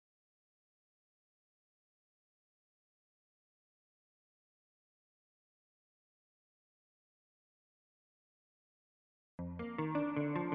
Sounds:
Music

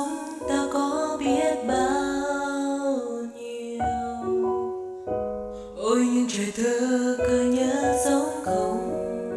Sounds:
Music, Lullaby

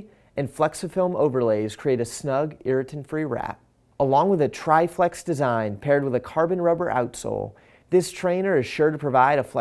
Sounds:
Speech

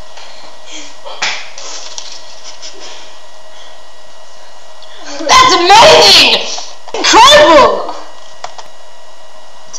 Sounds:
Speech, inside a small room

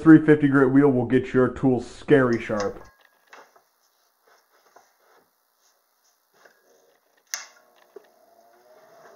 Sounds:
Tools, Speech

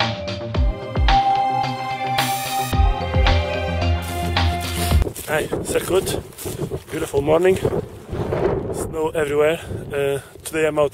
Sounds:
Music, Speech

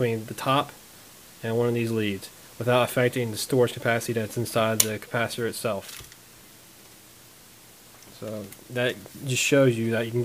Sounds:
Speech

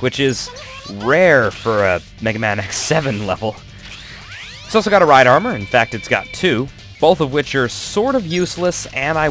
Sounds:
Speech, Music

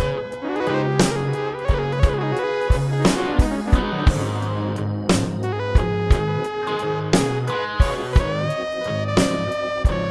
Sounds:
Music

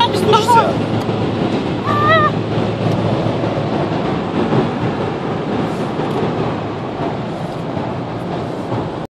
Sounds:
Speech

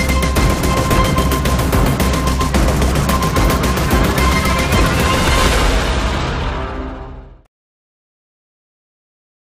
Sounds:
Music

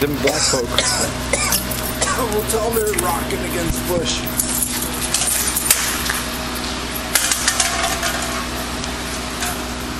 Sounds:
Speech

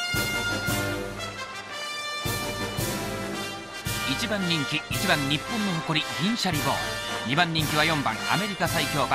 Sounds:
Speech, Music

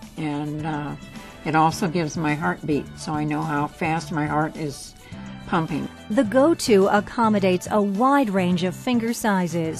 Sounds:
Music, Speech

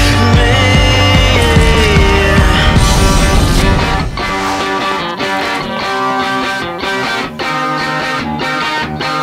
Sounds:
Electric guitar, Music

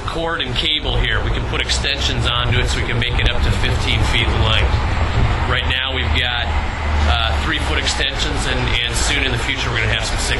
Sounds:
Speech

